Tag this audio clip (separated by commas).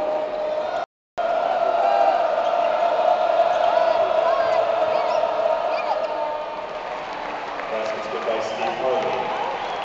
Crowd, people crowd, Cheering